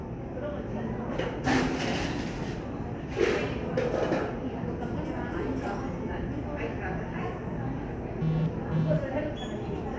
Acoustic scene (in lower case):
cafe